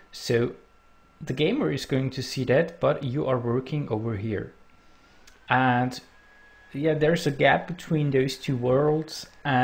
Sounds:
Speech

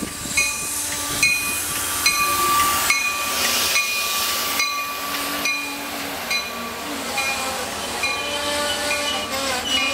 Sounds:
train wagon, Rail transport, Train, underground

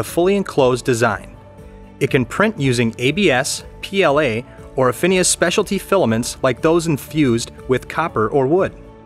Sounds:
Music, Speech

